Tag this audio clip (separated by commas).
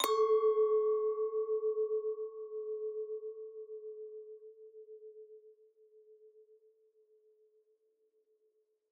clink, Glass